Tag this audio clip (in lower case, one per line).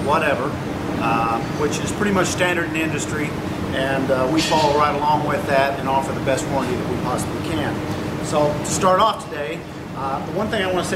speech